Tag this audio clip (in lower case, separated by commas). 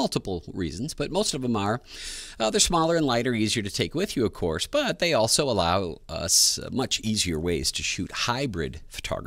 speech